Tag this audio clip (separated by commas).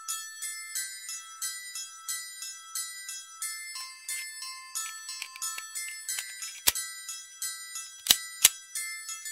Glockenspiel